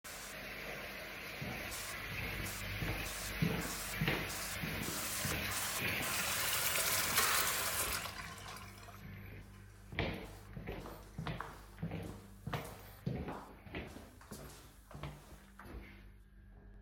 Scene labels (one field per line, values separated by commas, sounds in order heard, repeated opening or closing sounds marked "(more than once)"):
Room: kitchen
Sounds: running water, footsteps